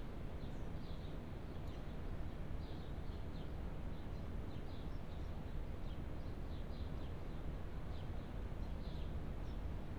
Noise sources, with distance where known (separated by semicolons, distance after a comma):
background noise